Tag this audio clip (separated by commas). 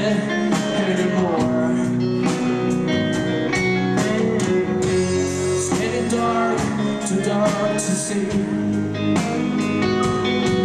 Music